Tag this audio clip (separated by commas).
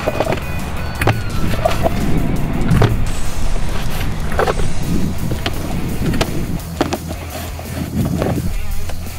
Music